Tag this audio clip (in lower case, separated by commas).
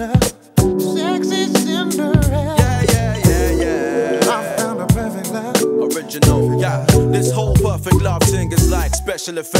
music